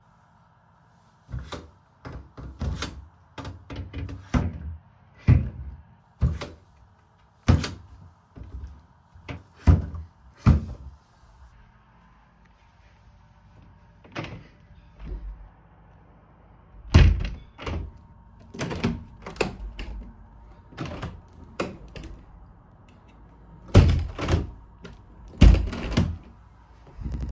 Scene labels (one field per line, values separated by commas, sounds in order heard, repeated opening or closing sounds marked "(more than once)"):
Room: bedroom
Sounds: wardrobe or drawer (more than once), window (more than once)